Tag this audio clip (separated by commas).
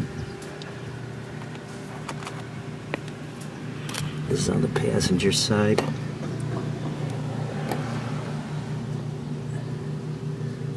Speech